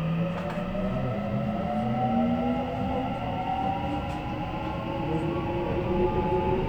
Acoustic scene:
subway train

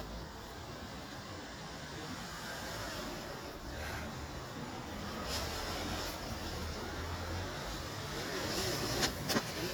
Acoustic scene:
street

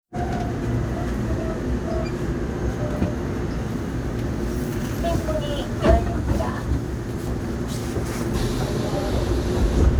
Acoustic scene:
subway train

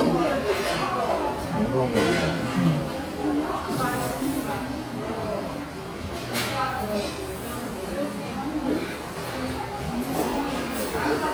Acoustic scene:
crowded indoor space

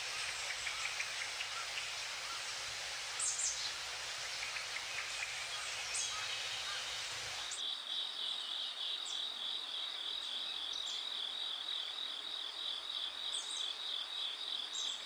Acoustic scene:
park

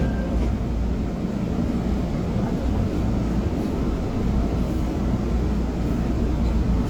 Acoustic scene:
subway train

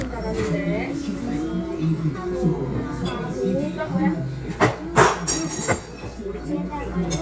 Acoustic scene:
restaurant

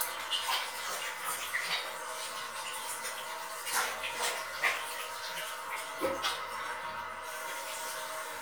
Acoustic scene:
restroom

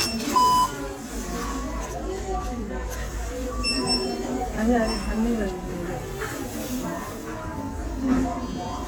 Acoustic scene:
crowded indoor space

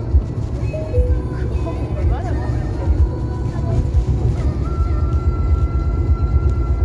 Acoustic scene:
car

